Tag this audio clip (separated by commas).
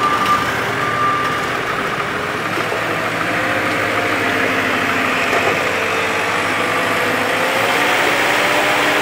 tractor digging